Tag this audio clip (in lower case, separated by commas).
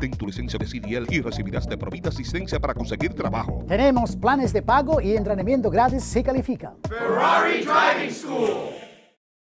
music, speech